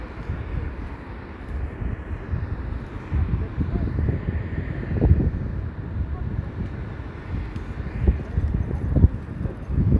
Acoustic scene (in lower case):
street